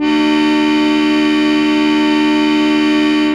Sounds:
Music, Musical instrument, Keyboard (musical), Organ

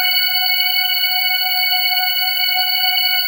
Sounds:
Music, Musical instrument, Keyboard (musical), Organ

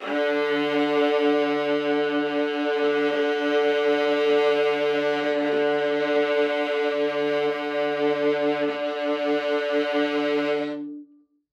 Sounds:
Music, Musical instrument, Bowed string instrument

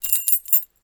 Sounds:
Keys jangling, Domestic sounds

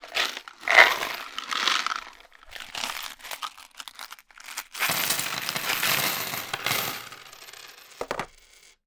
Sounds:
Domestic sounds, Coin (dropping)

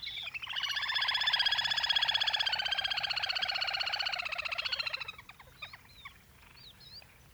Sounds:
Bird, Wild animals, Animal

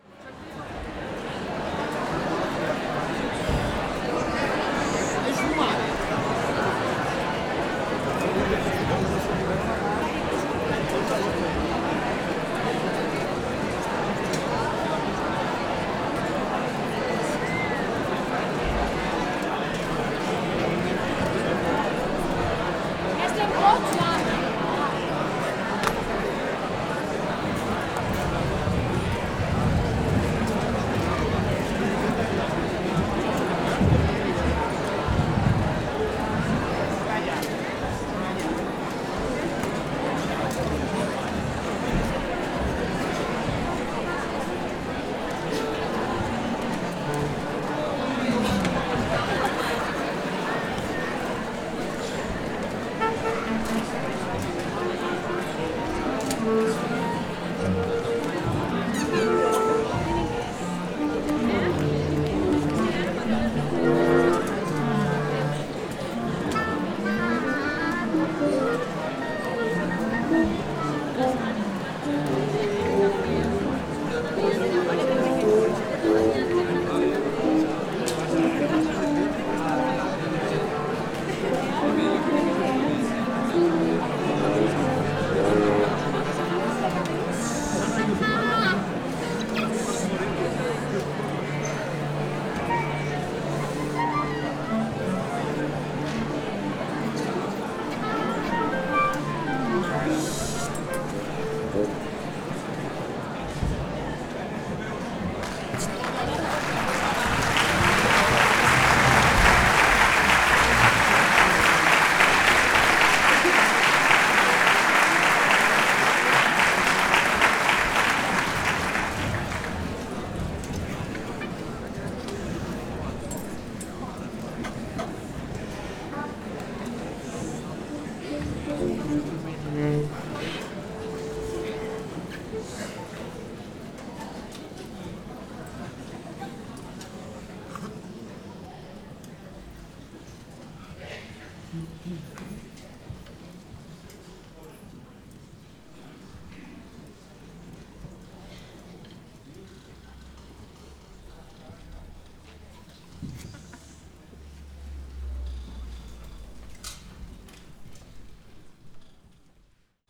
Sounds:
Human voice, Male speech, Speech

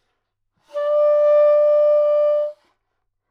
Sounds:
Musical instrument, Music, woodwind instrument

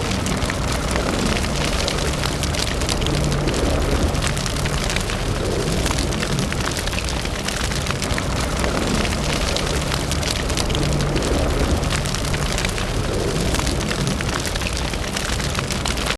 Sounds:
Fire

